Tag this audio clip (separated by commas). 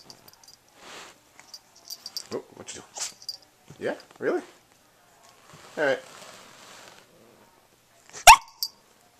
canids, Animal, Speech, Domestic animals, Dog